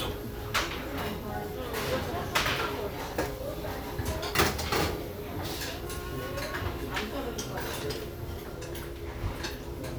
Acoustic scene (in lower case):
restaurant